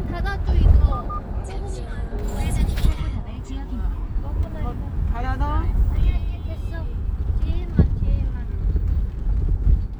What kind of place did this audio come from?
car